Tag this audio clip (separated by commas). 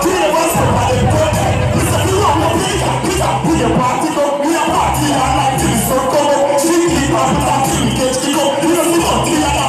Music